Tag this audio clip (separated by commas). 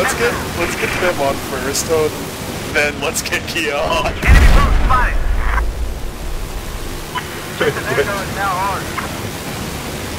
Pink noise